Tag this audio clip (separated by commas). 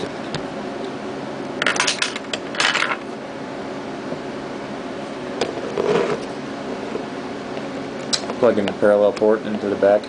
Speech, inside a small room